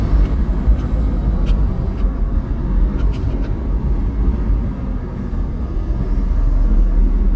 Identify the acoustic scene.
car